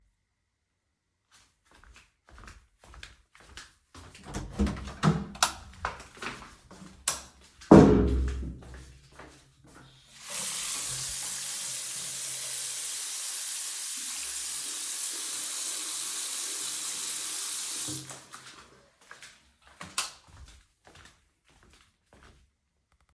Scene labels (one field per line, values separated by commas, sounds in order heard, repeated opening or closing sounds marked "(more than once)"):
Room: bathroom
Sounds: footsteps, door (more than once), light switch, running water